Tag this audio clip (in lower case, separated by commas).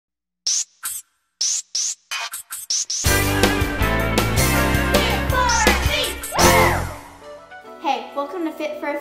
speech, music, inside a small room